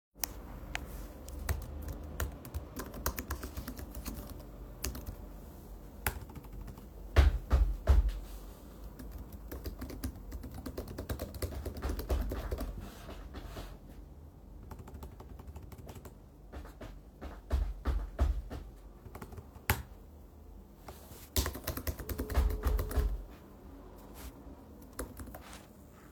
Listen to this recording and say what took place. I'm typing on the keyboard while a person sometimes passes by and makes footsteps. At the final seconds the phone makes a sound.